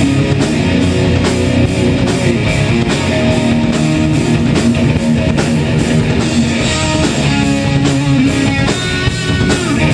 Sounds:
Music, Musical instrument, Guitar, Electric guitar

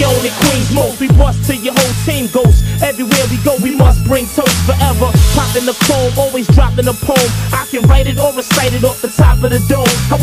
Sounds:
Music

